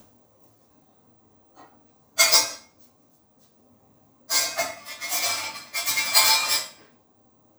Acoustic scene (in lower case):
kitchen